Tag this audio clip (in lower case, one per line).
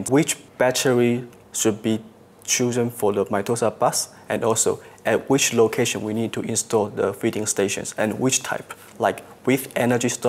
speech